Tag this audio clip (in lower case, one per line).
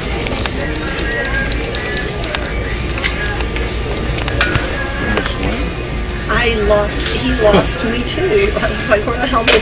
speech